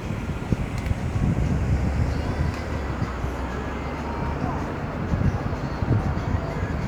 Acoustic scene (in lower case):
street